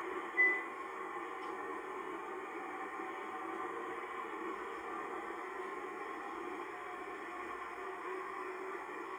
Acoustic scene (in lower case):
car